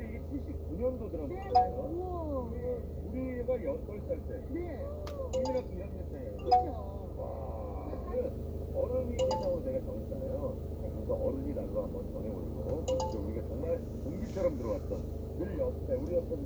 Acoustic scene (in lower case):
car